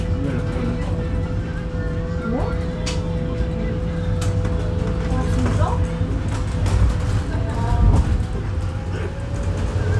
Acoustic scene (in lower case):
bus